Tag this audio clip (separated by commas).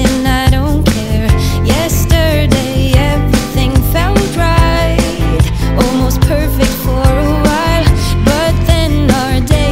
New-age music, Music